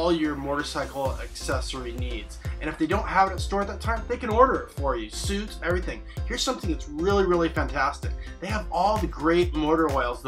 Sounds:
Music, Speech

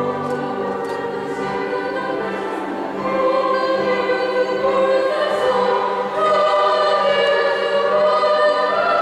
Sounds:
Music, Female singing

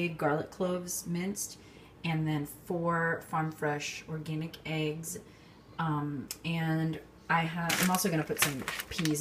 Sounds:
Speech

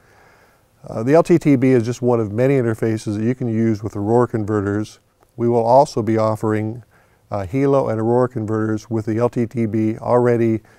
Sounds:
Speech

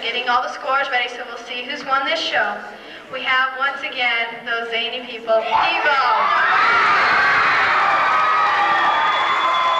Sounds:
Speech

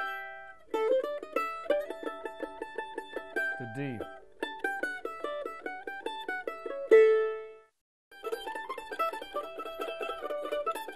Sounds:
playing mandolin

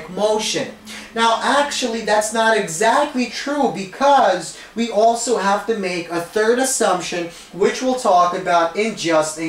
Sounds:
Speech

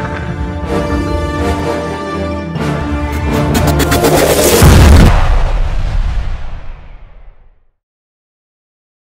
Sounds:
Music

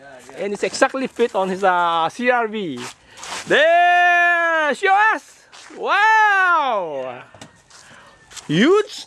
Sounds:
Speech

